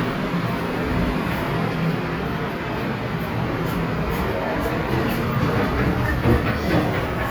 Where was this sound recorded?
in a subway station